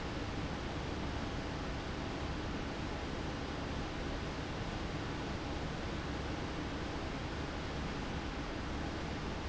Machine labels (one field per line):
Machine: fan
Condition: abnormal